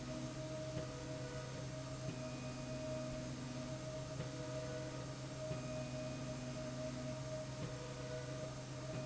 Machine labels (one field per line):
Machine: slide rail